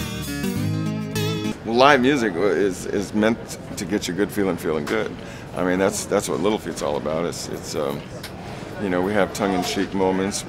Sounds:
Speech, Music

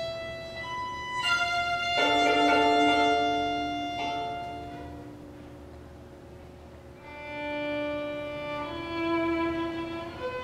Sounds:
Violin, Music, Musical instrument

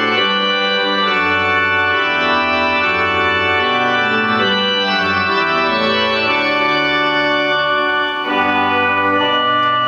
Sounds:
Musical instrument, Music

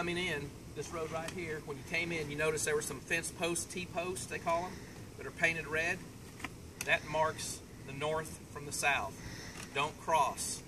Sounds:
Speech

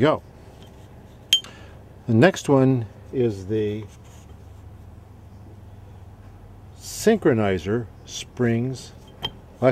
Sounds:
Speech

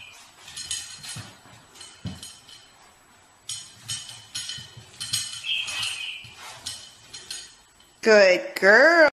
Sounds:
Bicycle, Speech

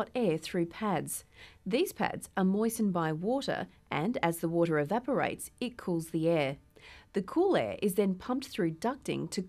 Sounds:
Speech

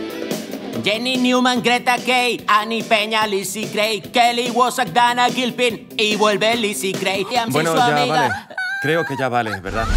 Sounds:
Music, Speech

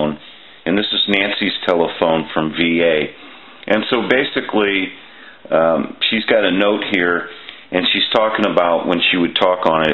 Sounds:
Speech

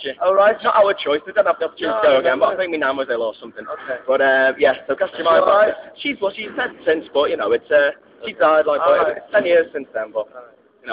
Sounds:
Speech

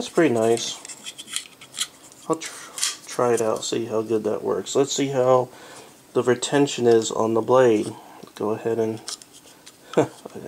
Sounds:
Tools

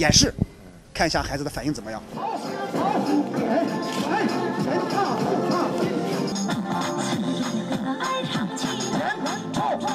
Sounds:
people shuffling

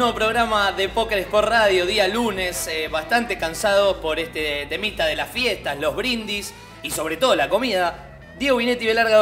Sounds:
Speech, Music

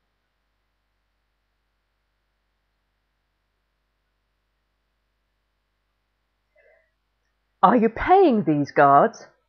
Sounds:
Speech

